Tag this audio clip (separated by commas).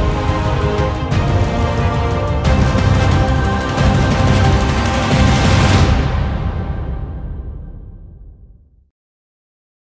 Music